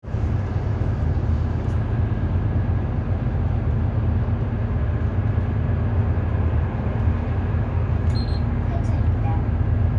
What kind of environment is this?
bus